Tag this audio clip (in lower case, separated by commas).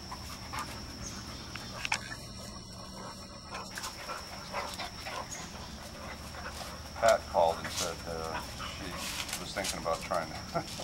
dog, bird, animal, pets, outside, rural or natural, speech